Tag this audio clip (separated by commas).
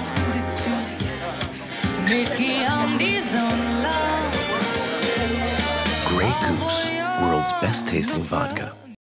Speech, Music